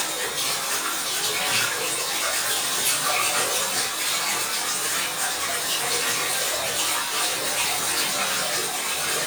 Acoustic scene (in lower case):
restroom